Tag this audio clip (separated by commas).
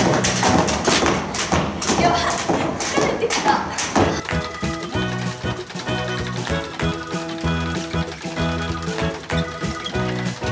rope skipping